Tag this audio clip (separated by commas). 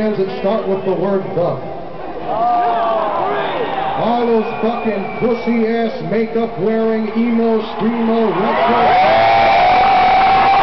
monologue, Speech, man speaking